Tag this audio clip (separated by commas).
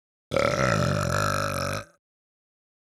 eructation